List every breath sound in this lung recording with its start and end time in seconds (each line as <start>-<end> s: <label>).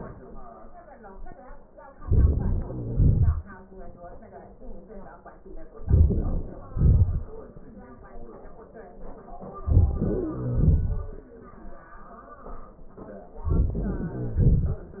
1.97-2.70 s: inhalation
1.98-2.69 s: crackles
2.67-3.69 s: exhalation
2.71-3.39 s: crackles
5.83-6.70 s: crackles
5.83-6.73 s: inhalation
6.70-7.59 s: exhalation
6.71-7.24 s: crackles
9.55-10.41 s: inhalation
9.92-10.39 s: wheeze
10.40-11.02 s: crackles
10.40-11.95 s: exhalation
13.31-14.10 s: inhalation
13.72-14.09 s: wheeze
14.10-15.00 s: exhalation
14.10-15.00 s: crackles